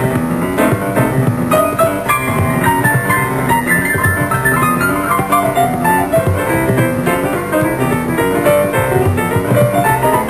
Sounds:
Music

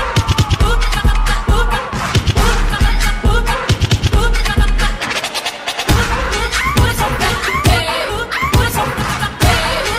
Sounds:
Music

